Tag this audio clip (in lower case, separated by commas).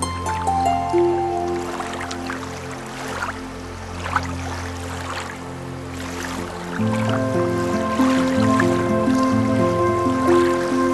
flute, music